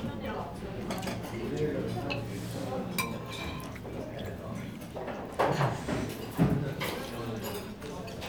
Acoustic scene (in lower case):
crowded indoor space